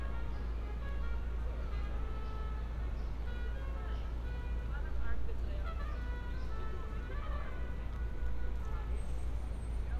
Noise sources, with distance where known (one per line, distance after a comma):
medium-sounding engine, far
music from a fixed source, near
person or small group talking, near